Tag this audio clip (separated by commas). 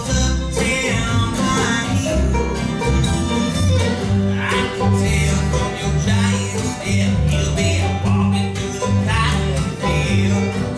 Speech, Music, Bluegrass, Male singing